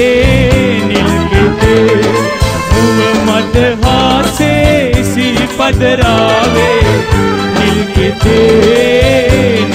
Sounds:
music
dance music

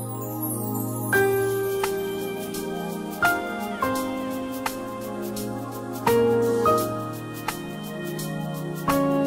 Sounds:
music

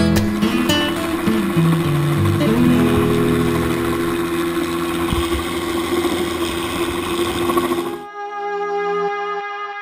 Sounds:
music

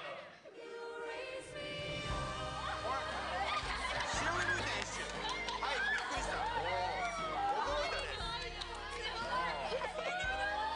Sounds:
speech
music

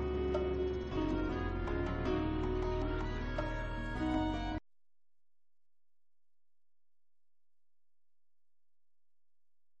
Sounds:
outside, rural or natural
silence
music

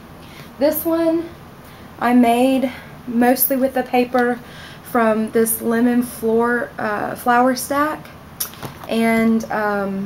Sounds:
speech

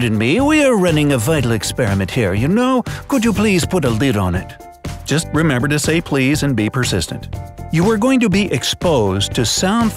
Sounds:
mosquito buzzing

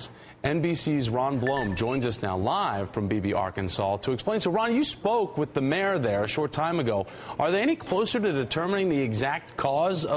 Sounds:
speech

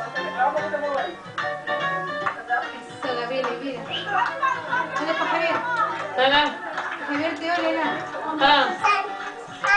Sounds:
synthetic singing
speech
music

